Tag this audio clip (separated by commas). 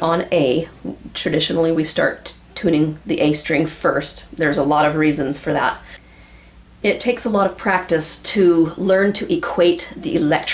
Speech